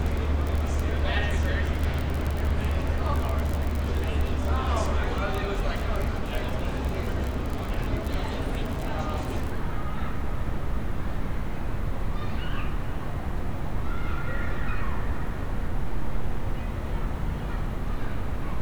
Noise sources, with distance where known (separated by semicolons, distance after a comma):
unidentified human voice